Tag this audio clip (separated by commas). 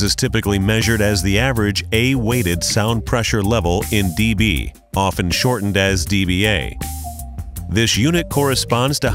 Speech, Music